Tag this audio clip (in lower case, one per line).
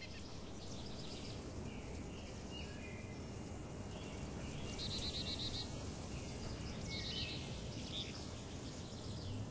bird call
bird
tweet